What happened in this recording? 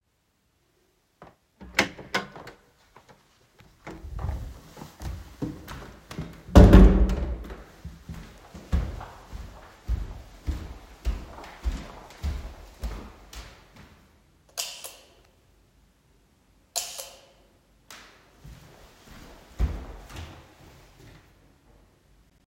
I opened the door from the bedroom to the hallway and stepped in the hallway. Afterwards i closed the door to the bedroom and moved accross the hallway on the wooden floor to the light_switch which I turned on and off again. After that I went to the stairs.